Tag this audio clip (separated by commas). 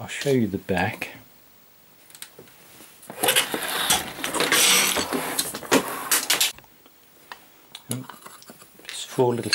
Speech, inside a small room